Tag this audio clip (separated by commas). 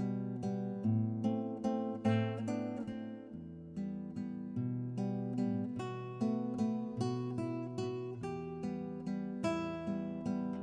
Acoustic guitar, Guitar, Music, Strum, Musical instrument, Plucked string instrument